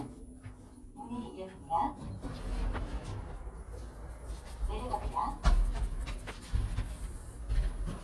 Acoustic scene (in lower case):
elevator